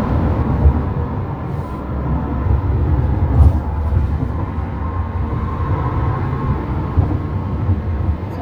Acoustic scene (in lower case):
car